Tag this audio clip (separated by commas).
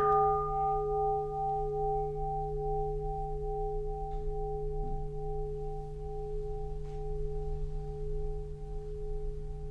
Music